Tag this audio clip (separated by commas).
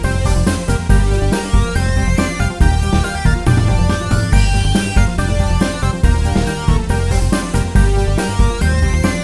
Music, Funny music